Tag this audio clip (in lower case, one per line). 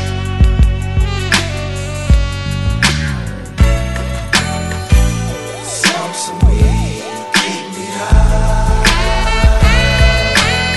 music